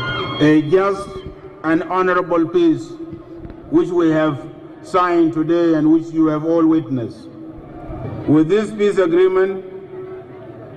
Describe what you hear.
A man giving a speech